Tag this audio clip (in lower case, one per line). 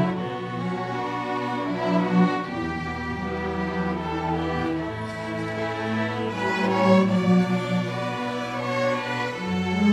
music
lullaby